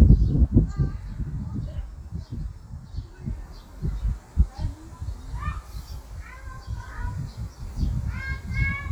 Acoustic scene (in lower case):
park